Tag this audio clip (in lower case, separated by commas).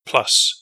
man speaking, speech, human voice